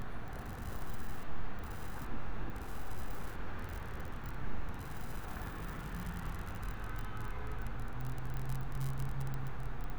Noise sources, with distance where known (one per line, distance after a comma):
car horn, far